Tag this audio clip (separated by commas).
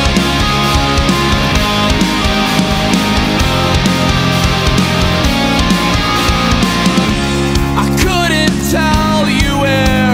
Music